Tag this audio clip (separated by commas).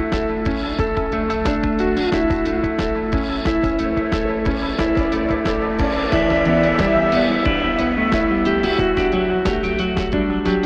Music